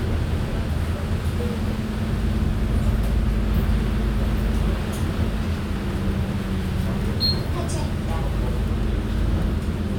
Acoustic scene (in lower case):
bus